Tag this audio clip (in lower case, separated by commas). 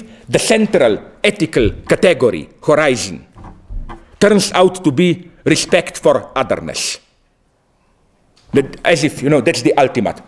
speech